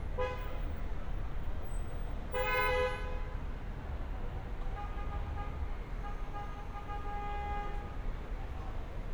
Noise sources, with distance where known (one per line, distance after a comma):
car horn, near